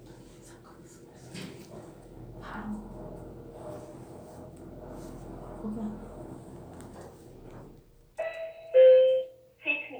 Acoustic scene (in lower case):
elevator